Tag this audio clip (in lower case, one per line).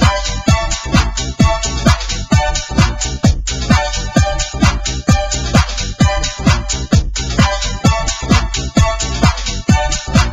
music